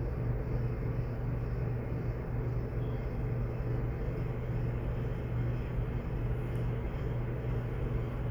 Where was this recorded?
in an elevator